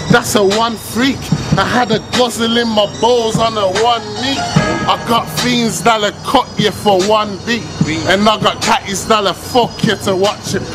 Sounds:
Music

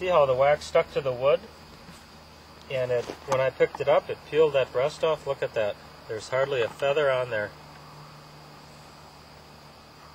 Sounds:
Speech

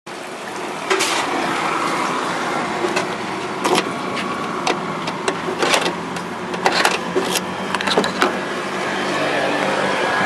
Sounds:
Car, Vehicle

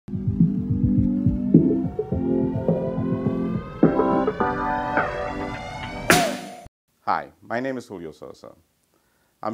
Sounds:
Music, Speech

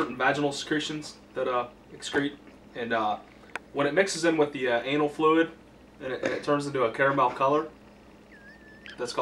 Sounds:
Speech

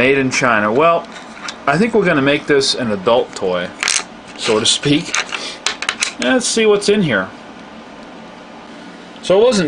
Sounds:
inside a small room, Speech

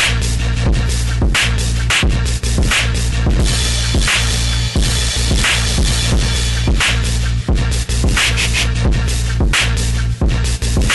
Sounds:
Music

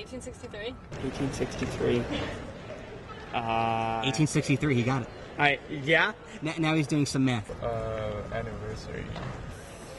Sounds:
Speech

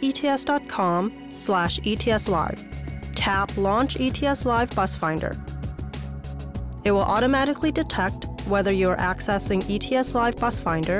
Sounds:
Music, Speech

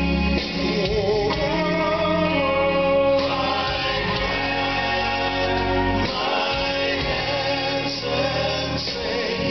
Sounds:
Music, Male singing, Choir

